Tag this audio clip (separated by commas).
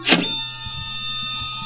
Printer, Mechanisms